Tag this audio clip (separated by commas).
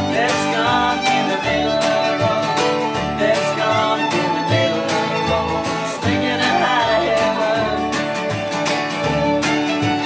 Singing, Bowed string instrument, Musical instrument, Bluegrass